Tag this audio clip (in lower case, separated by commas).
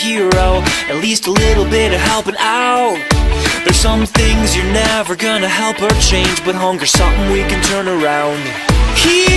music